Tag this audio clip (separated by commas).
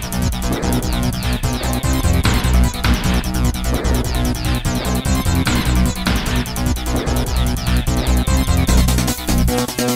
Music